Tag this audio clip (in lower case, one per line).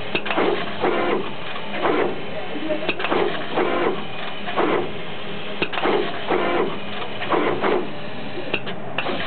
printer
printer printing